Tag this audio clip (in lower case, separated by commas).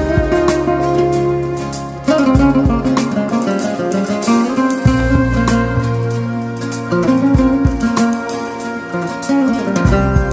zither